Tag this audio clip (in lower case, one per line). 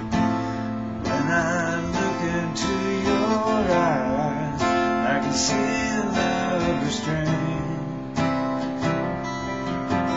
music